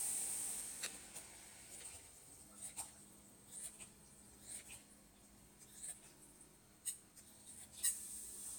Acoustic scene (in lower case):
kitchen